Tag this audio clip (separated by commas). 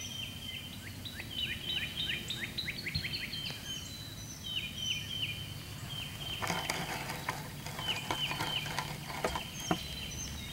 Animal, Bird